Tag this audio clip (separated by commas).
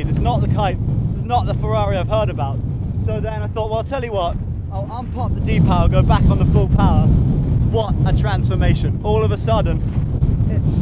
Speech